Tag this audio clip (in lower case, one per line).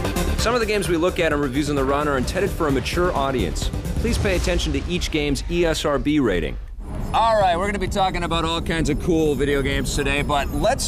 speech
music